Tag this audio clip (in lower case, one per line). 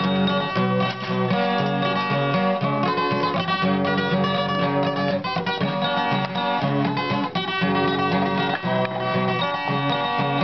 strum
musical instrument
plucked string instrument
guitar
music